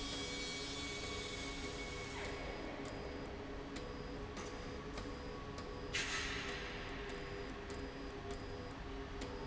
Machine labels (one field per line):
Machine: slide rail